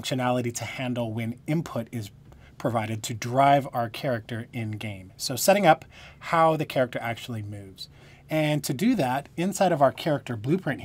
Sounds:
speech

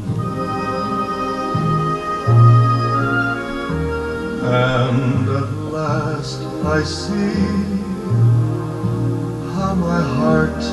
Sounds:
male singing, music

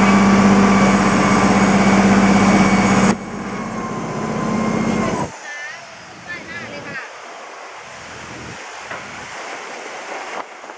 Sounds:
boat, speech, motorboat, vehicle

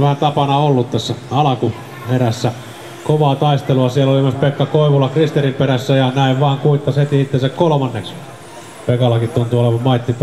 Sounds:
speech

